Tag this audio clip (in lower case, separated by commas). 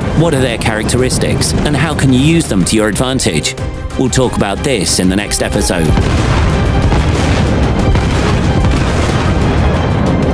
music, speech